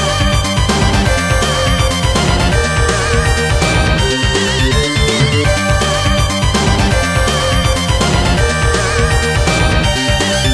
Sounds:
music

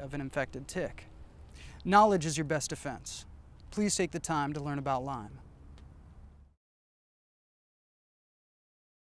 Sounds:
speech

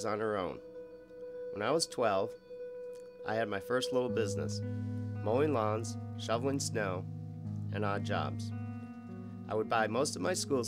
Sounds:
speech
music

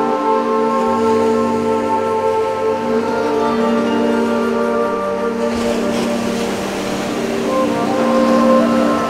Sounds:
ocean
surf

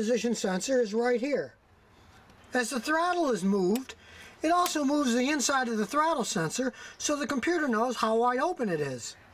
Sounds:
speech

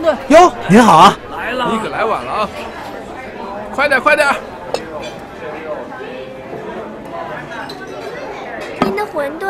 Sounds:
speech

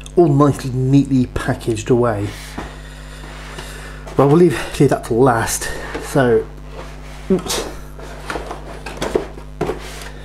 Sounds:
speech

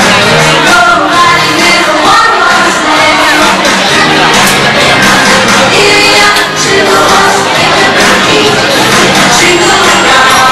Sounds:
music

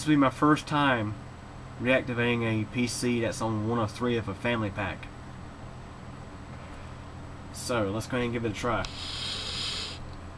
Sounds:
speech

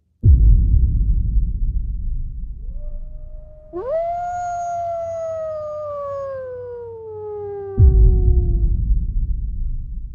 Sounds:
coyote howling

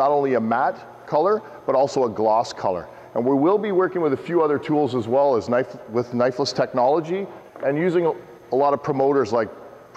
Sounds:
speech

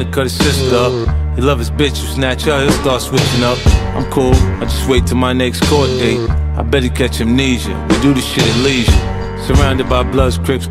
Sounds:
music

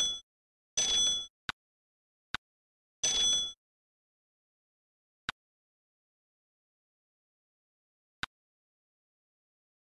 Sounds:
tick

